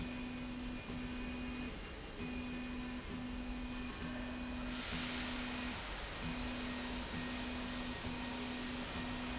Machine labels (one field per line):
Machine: slide rail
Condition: normal